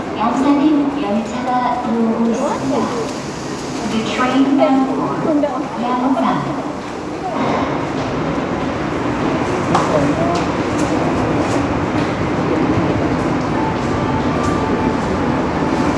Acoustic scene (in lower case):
subway station